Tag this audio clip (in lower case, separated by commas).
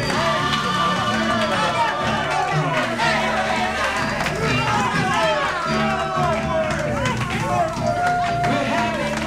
speech, music